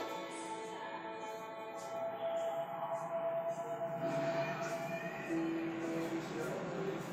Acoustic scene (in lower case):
subway station